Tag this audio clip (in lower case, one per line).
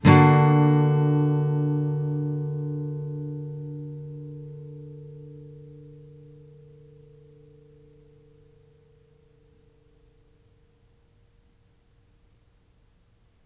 guitar
plucked string instrument
strum
music
musical instrument